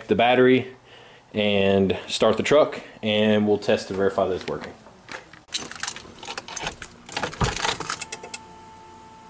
A man is talking then starts up an engine